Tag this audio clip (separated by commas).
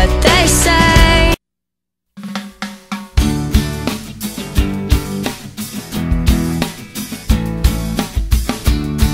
Pop music, Music, Singing